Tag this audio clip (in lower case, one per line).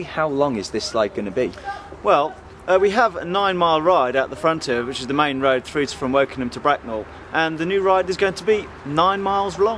speech